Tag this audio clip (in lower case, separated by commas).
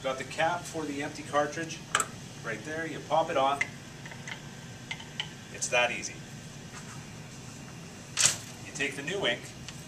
speech